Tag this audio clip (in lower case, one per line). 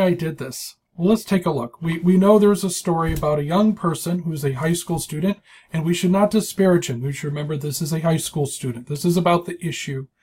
speech